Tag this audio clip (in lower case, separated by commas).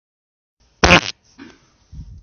fart